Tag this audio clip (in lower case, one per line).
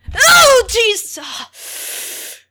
human voice
yell
shout